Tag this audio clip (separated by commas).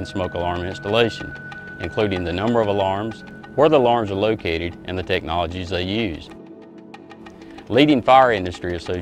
Speech, Music